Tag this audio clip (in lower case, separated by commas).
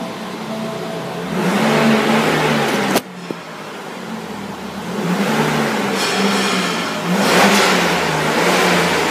car, vehicle